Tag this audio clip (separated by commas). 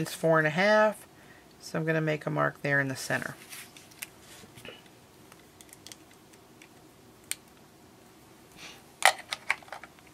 Speech, inside a small room